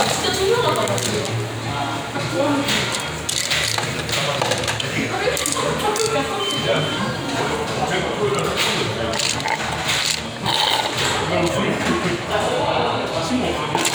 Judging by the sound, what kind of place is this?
restaurant